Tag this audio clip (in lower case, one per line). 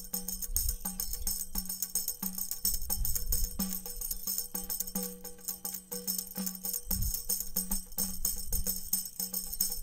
playing tambourine